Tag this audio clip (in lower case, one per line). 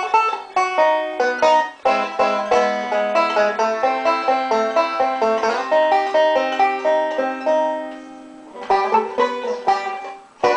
playing banjo
banjo
music